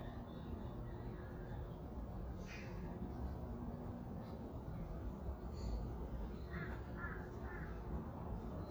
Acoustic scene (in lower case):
residential area